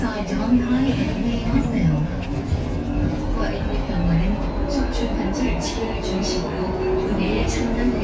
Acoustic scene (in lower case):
bus